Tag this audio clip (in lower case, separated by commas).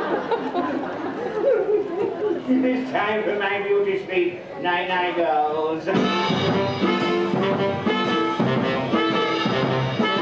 music, speech